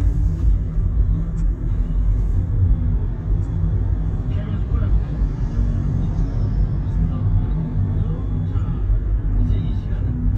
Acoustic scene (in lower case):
car